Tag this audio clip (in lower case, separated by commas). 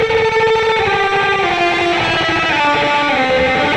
guitar, musical instrument, plucked string instrument, music, electric guitar